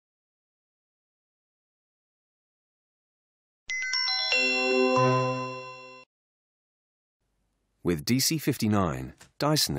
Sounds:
Music, Speech

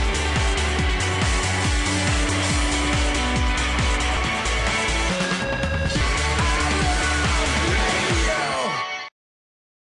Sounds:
Music

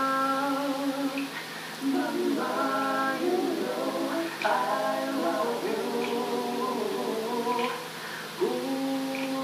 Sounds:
Male singing, Choir

